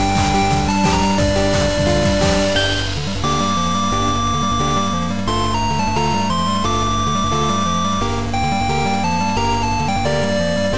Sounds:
Music

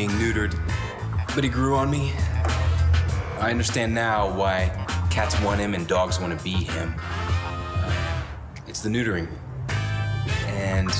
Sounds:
Speech, Music

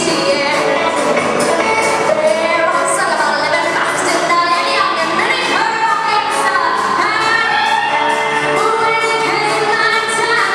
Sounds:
Singing, Yodeling, Song, Music of Asia

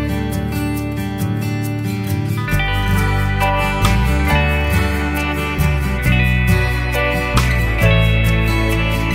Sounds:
Music

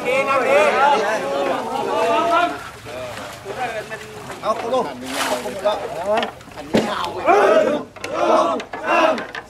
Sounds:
Vehicle, Speech

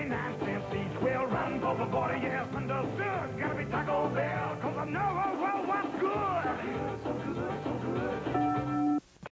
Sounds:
Music

